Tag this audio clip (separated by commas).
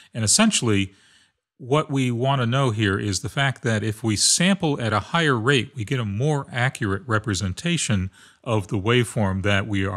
Speech